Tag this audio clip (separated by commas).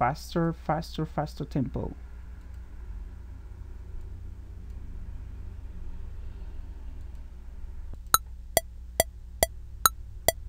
Speech, Music